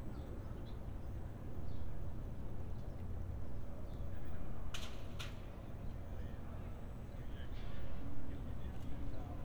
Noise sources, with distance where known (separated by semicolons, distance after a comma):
non-machinery impact, near